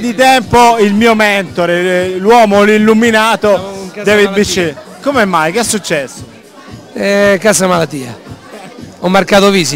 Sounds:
Disco, Speech, Music

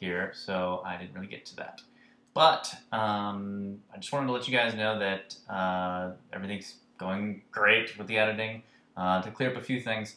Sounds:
Speech

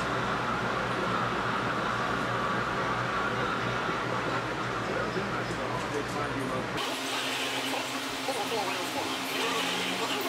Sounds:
Speech

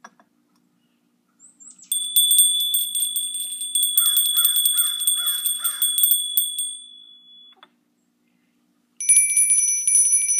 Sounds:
cattle

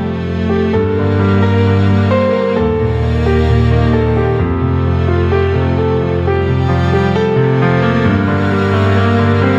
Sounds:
Music

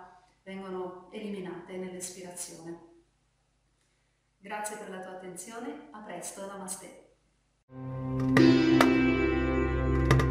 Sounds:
Speech, Music

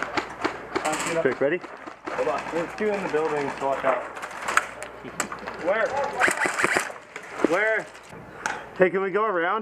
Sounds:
Speech

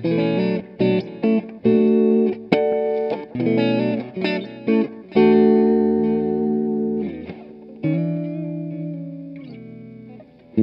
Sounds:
inside a small room, Musical instrument, Music, Plucked string instrument, Guitar, Reverberation

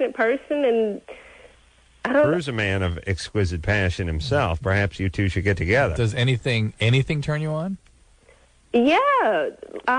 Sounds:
Speech

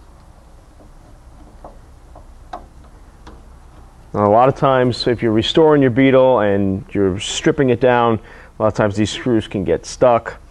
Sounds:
Speech

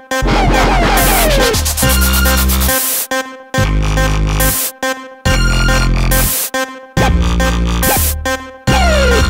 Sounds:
Music, Electronic music

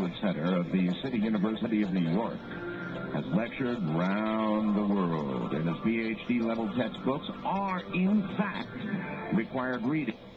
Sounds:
Music, Speech

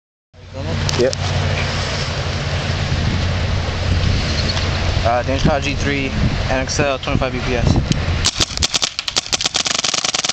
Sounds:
Speech, surf

